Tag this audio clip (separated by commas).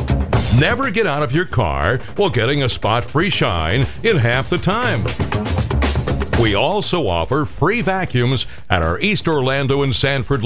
Music, Speech